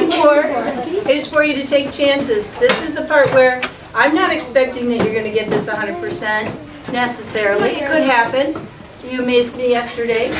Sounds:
speech, woman speaking

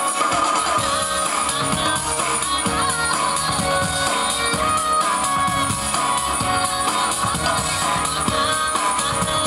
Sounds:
music

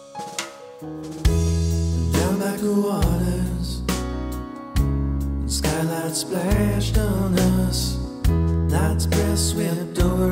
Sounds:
music

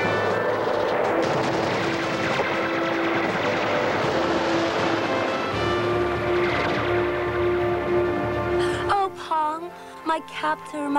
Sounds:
speech, music, television

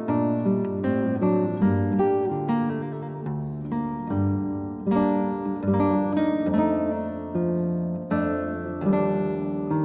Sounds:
guitar, music, plucked string instrument, musical instrument, strum, acoustic guitar

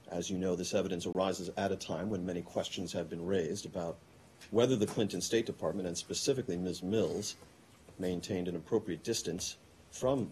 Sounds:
speech

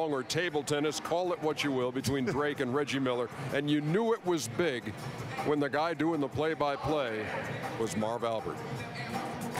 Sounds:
music, speech

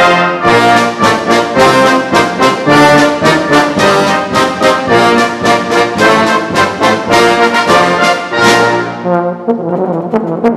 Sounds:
music

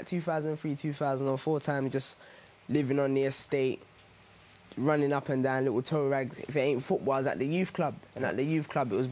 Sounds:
speech

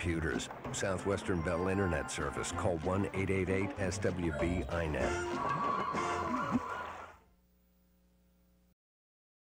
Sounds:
speech, music

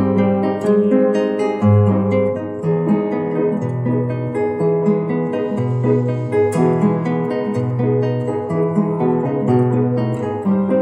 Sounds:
music, musical instrument, guitar, strum

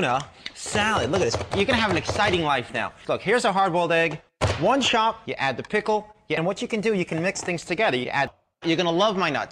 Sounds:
chopping (food)

